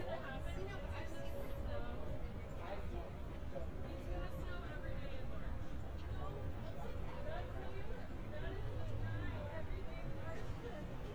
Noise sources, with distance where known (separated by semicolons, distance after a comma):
unidentified human voice, far